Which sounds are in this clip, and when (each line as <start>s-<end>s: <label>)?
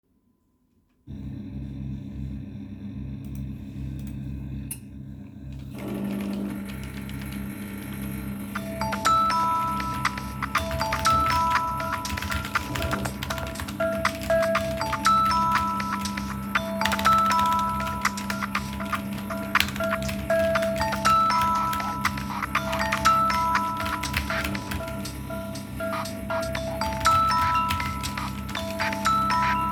0.8s-29.7s: coffee machine
5.5s-8.7s: keyboard typing
8.5s-29.7s: phone ringing
10.0s-29.7s: keyboard typing